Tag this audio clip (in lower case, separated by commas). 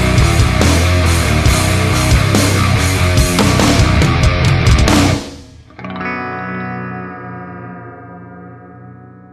effects unit, music